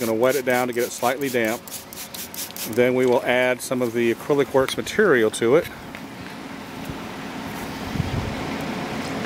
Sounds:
Speech

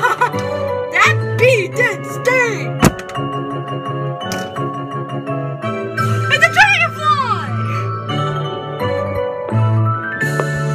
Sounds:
Speech, Music, inside a small room

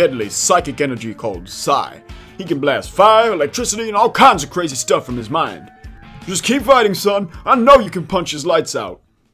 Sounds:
Speech, Music

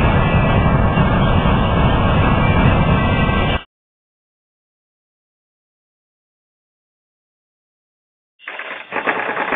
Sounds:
Silence

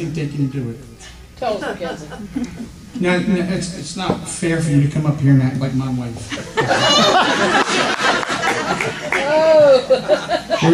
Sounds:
Speech

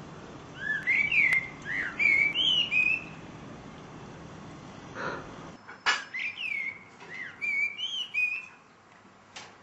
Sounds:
Bird

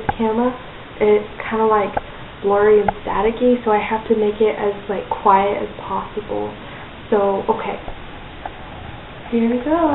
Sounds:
Speech

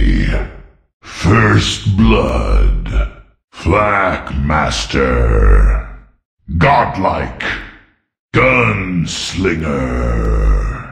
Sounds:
Speech

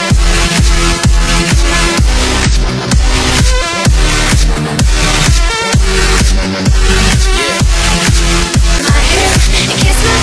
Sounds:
Music, Electronic dance music, Pop music

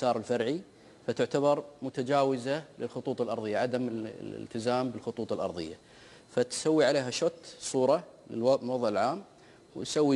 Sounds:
Speech

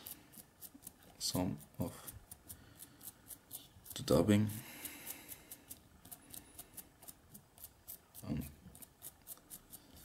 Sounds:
Speech, inside a small room

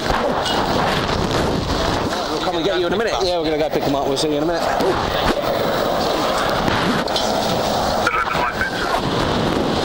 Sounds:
Vehicle, Speech

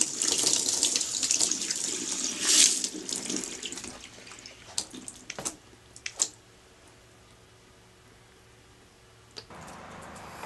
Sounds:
Sink (filling or washing), Water

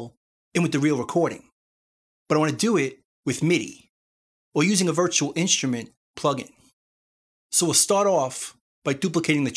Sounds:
Speech

